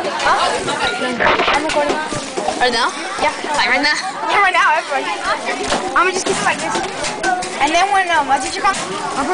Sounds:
speech

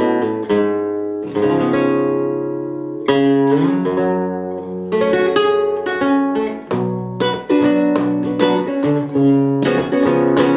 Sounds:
plucked string instrument
musical instrument
music
guitar

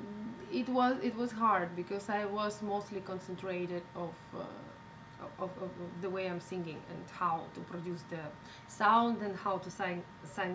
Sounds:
speech

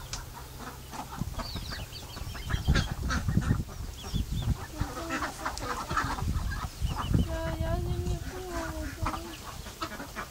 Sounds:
cluck
fowl
chicken
honk

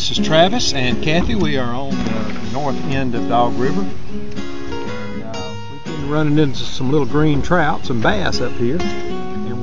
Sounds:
speech
music

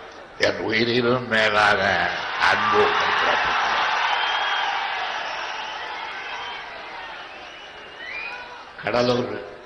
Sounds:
man speaking
monologue
conversation
speech

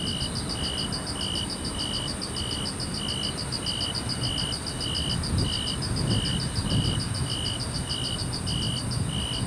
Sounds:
cricket chirping

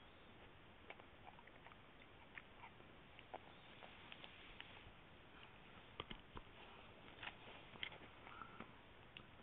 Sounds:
dog
animal
pets

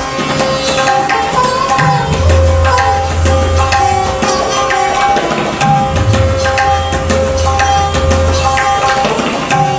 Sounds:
playing sitar

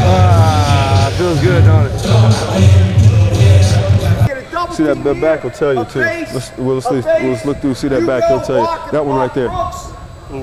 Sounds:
speech
music

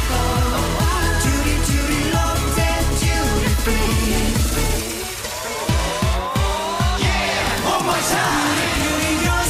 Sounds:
music

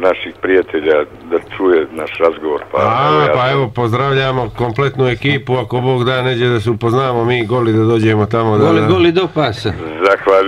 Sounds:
speech

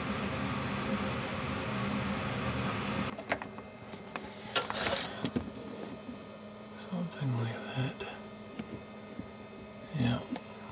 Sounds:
microwave oven

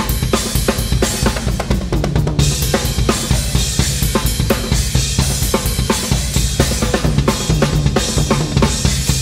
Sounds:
music
musical instrument
drum
drum kit

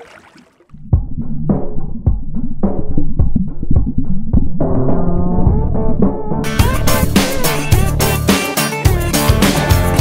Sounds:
drum machine

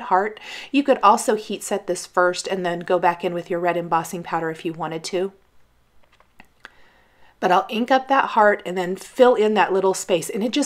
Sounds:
speech

